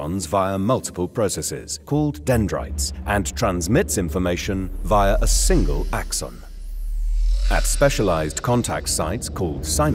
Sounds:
Speech, Music

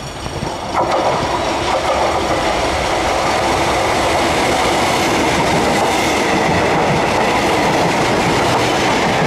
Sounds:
Train, Clickety-clack, Rail transport, Railroad car

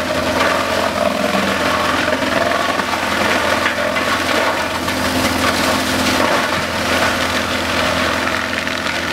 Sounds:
Vehicle

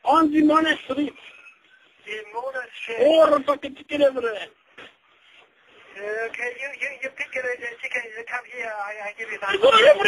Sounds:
Speech

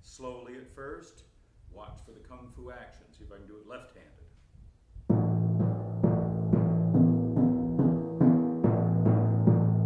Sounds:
playing timpani

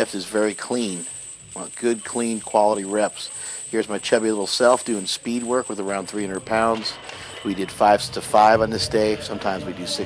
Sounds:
Speech

